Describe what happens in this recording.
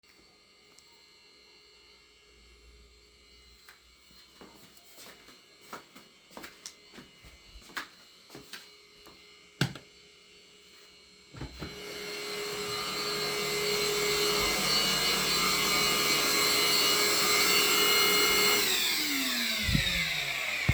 vaccum cleaner working,opening the door,walking to the living room,turning the vaccum cleaner off